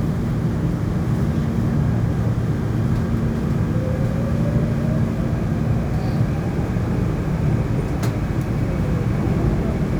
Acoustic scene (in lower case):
subway train